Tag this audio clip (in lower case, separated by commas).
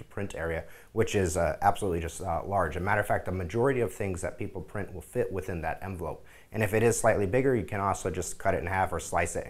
speech